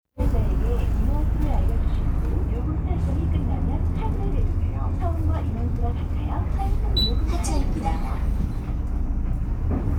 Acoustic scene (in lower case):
bus